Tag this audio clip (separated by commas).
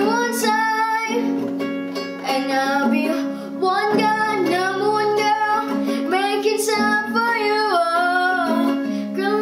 Singing, Musical instrument, Music, Guitar, Plucked string instrument, Acoustic guitar